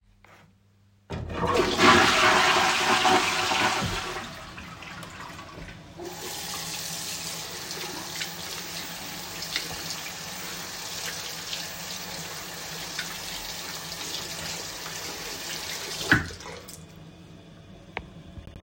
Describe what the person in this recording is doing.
the toilet flushes and I wash my hands with soap and water